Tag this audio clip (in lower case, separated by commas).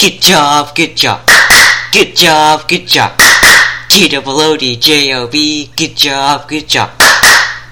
singing, human voice